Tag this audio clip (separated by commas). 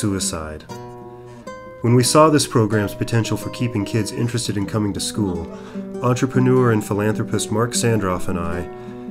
Speech, Plucked string instrument, Guitar, Music, Strum, Electric guitar, Musical instrument